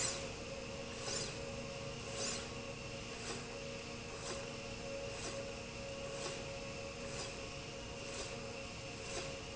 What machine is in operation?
slide rail